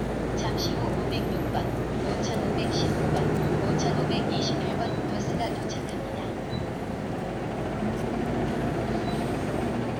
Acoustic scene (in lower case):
street